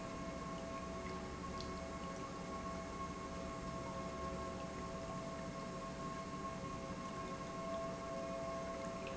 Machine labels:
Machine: pump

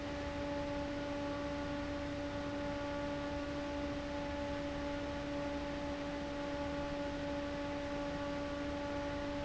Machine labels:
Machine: fan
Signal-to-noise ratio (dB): 0 dB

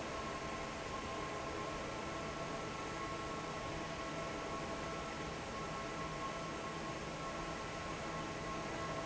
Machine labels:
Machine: fan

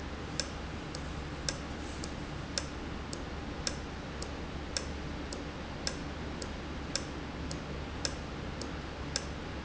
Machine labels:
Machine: valve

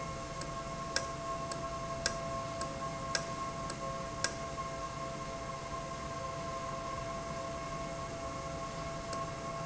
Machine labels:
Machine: valve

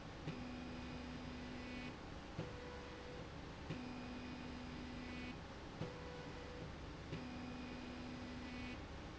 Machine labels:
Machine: slide rail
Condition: normal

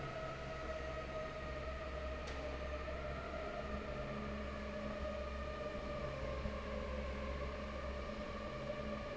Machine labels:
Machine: fan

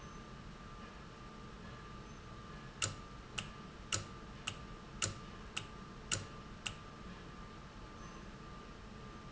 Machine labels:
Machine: valve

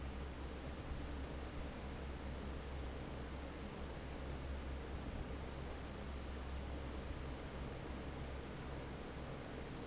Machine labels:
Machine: fan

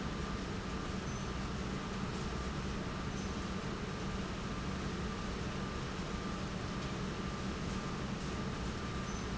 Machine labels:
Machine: pump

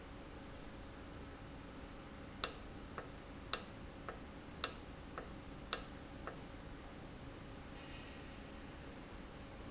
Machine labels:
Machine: valve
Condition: normal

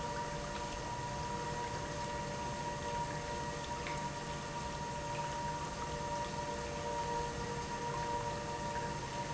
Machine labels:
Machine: pump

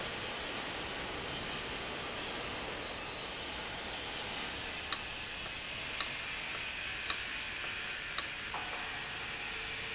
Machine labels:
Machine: valve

